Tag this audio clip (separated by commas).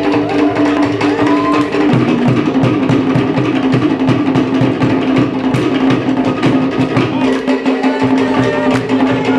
Music, Musical instrument, Drum